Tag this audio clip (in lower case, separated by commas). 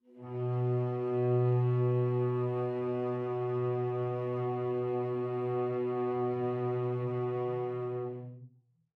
music, musical instrument, bowed string instrument